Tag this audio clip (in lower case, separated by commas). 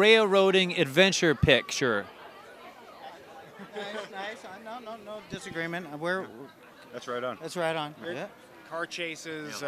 speech